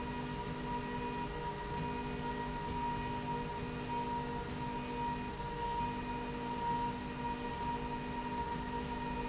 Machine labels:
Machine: slide rail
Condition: normal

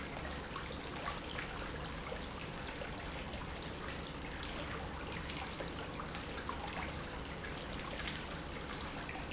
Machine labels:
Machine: pump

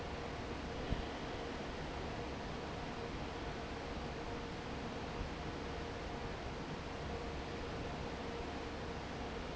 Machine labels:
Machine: fan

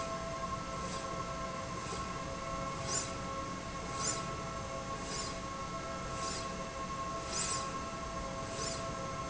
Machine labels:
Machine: slide rail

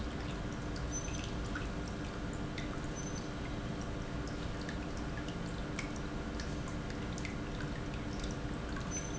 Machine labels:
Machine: pump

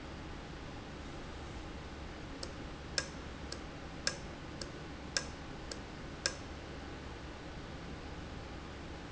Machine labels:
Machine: valve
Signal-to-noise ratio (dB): 0 dB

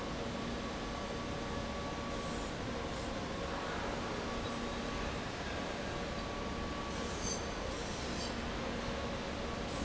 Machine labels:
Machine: fan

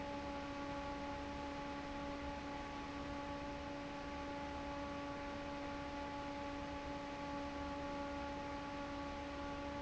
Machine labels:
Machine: fan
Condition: normal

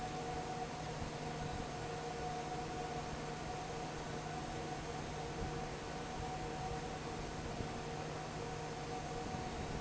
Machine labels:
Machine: fan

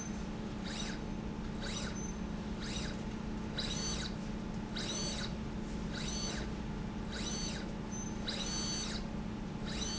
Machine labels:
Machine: slide rail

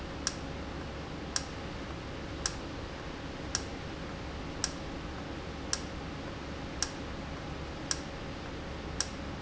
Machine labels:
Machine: valve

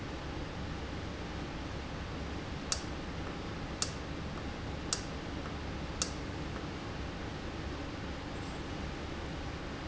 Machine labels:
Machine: valve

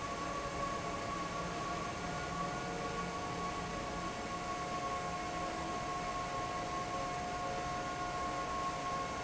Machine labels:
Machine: fan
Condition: normal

